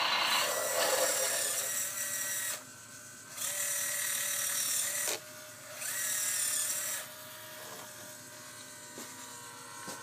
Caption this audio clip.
A high pitched machine speeding up